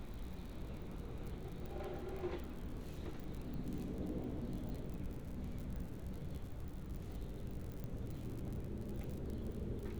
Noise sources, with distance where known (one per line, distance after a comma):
background noise